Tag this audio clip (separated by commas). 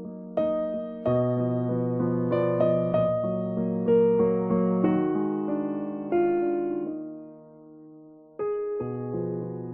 Music